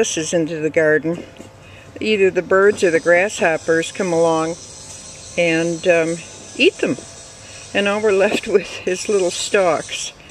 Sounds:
speech

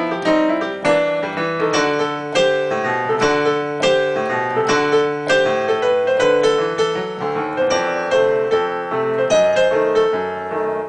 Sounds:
music

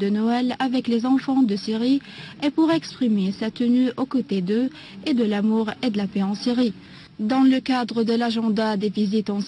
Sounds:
speech

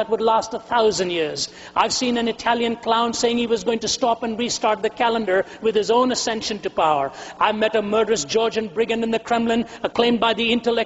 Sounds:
speech

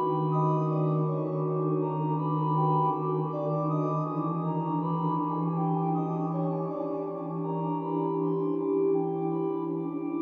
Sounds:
music, scary music

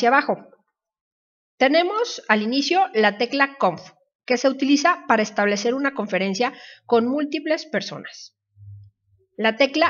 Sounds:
speech

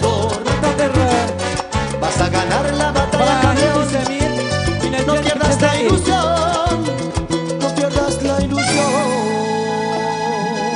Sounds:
speech, music, salsa music

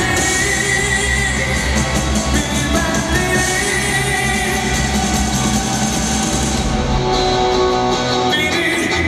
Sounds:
music

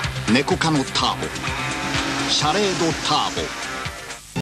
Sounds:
speech, music

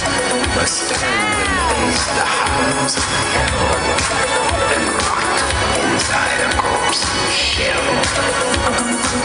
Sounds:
outside, urban or man-made, music

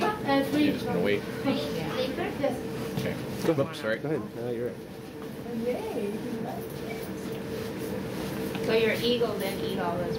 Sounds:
speech

